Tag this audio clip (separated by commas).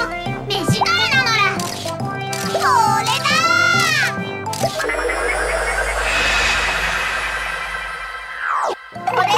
Sound effect